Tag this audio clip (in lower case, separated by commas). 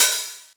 hi-hat, musical instrument, percussion, music, cymbal